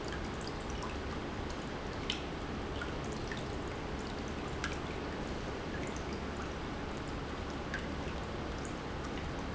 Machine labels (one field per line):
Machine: pump